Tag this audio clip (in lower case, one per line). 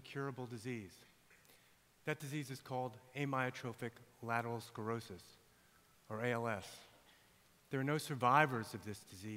speech